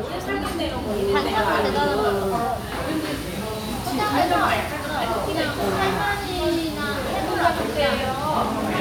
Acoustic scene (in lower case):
restaurant